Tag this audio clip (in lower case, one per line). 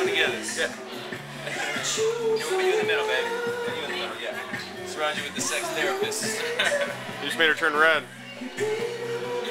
speech
music